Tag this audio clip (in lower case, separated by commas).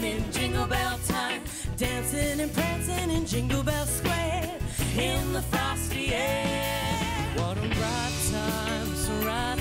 music